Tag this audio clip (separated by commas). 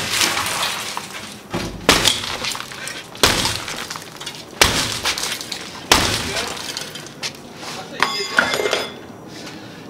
Glass, Speech